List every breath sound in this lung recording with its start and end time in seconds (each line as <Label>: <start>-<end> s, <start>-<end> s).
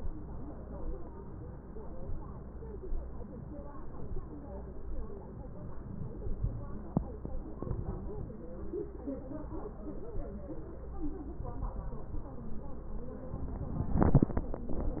Inhalation: 7.56-8.44 s, 11.42-12.29 s